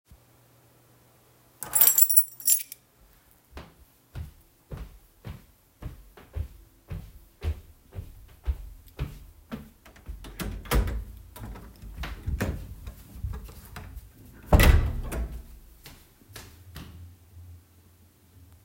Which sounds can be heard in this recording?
keys, footsteps, door